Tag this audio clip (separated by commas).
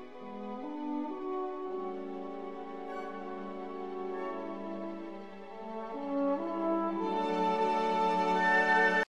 Yip, Music